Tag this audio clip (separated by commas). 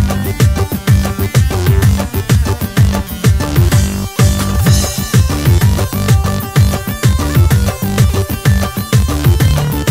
Exciting music, Music